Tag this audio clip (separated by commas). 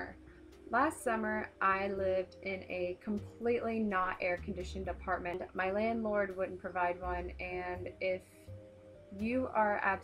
Music, Speech